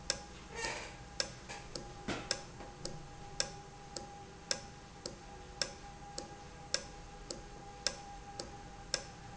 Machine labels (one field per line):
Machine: valve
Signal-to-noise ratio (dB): 6 dB